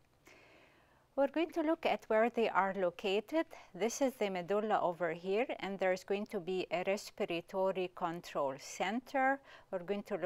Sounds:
Speech

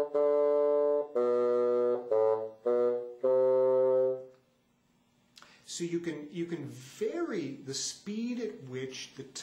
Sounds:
playing bassoon

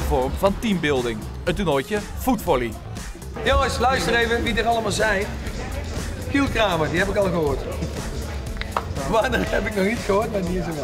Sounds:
Car, Music, Vehicle, Tap, Speech

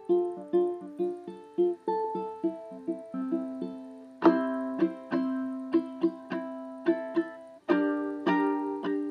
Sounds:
Music

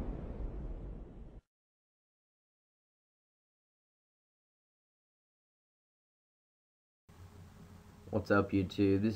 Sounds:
Speech

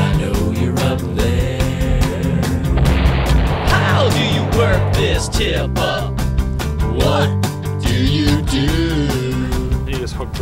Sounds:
Music

